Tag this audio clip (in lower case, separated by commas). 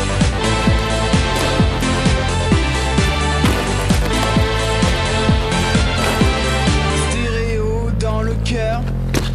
music, burst